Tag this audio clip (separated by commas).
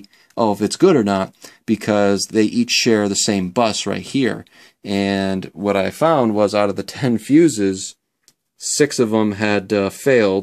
Speech